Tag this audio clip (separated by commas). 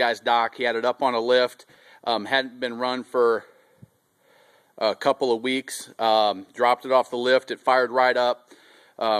Speech